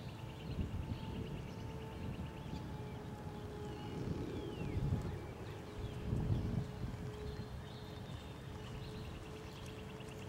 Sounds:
horse clip-clop
clip-clop

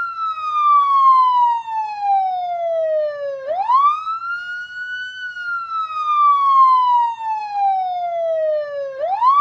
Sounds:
police car (siren)

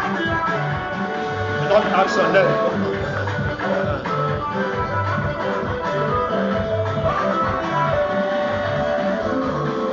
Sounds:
speech
music

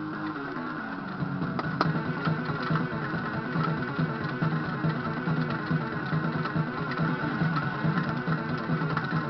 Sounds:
music
bass guitar
musical instrument

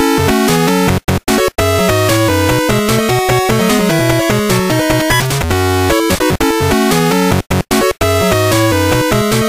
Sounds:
soundtrack music
music

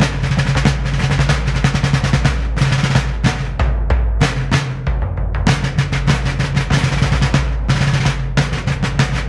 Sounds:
music
traditional music

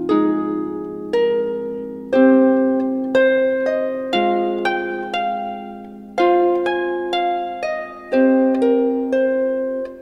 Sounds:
music
keyboard (musical)

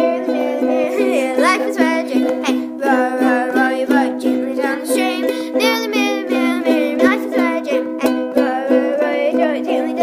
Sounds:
playing ukulele

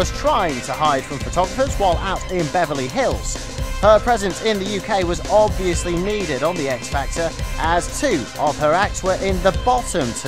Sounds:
music
speech

